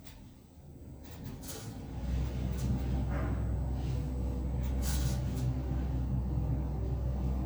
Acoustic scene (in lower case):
elevator